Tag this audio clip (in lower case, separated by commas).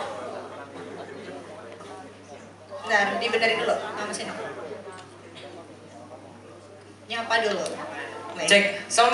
speech